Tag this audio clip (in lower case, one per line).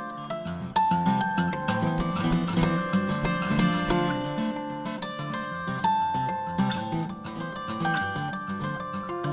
music
acoustic guitar
guitar
musical instrument
plucked string instrument